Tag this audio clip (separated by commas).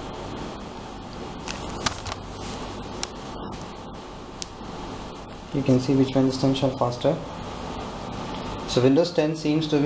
Speech, inside a small room